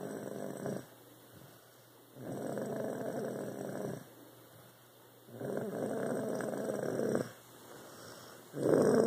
Snoring is occurring